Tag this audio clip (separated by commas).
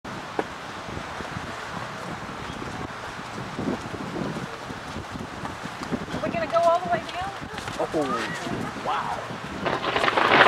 Wind, Speech